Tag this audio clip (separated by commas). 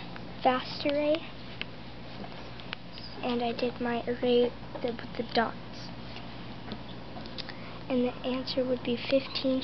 Speech